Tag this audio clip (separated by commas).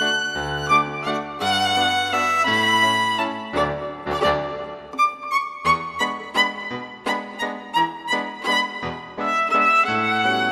Music